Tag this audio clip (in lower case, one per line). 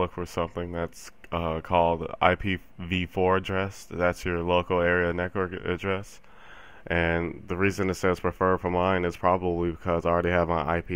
speech